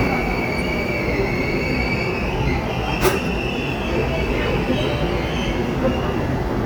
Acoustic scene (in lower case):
subway station